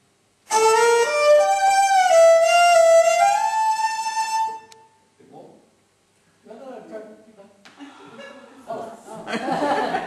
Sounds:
fiddle, Musical instrument, Speech, Music

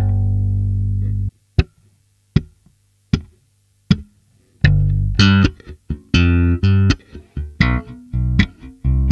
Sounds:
Plucked string instrument, Bass guitar, Musical instrument, Guitar, Music, playing bass guitar

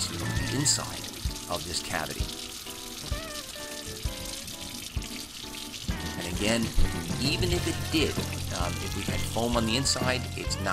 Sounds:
Speech, Music

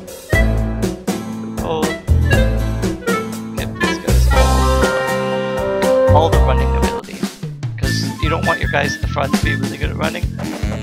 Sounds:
Music, Speech

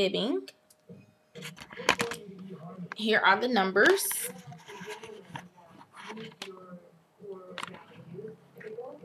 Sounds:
Speech

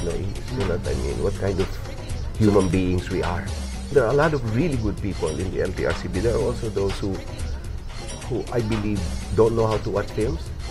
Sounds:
Music, Speech

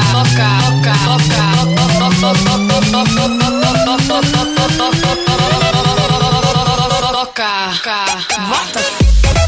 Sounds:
Speech, Music, Electronic dance music

